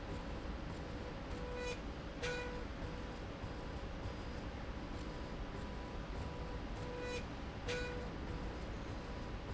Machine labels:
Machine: slide rail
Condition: normal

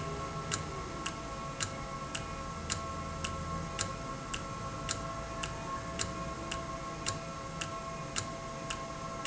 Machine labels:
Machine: valve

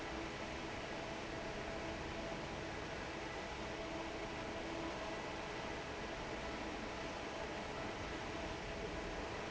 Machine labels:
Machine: fan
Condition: normal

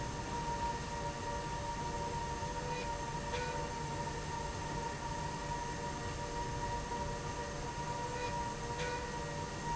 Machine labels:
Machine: slide rail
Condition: normal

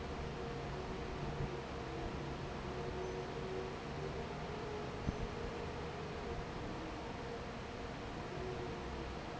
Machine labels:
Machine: fan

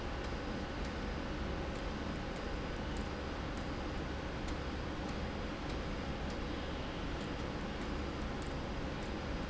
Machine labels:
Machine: slide rail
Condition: abnormal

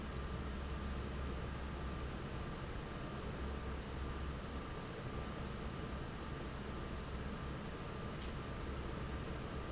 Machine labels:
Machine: fan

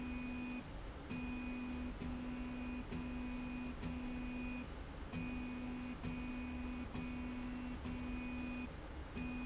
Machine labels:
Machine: slide rail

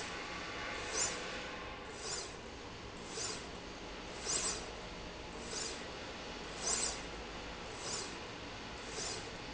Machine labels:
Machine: slide rail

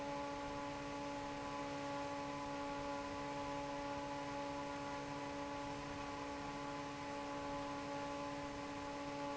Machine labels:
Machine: fan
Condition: normal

